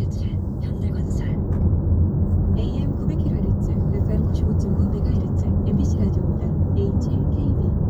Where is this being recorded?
in a car